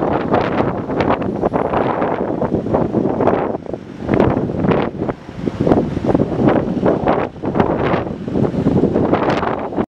Heavy continuous wind